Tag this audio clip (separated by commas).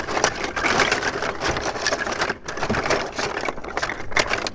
Rattle